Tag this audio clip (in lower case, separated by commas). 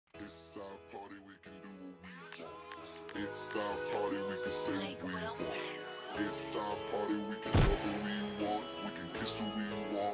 music, singing